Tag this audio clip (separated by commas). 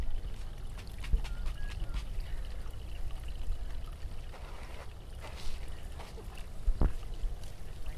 Water